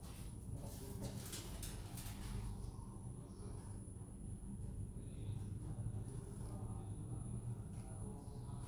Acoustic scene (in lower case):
elevator